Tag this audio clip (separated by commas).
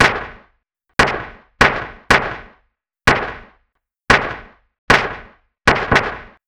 gunfire, Explosion